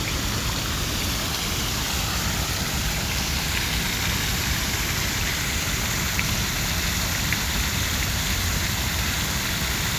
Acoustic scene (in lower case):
park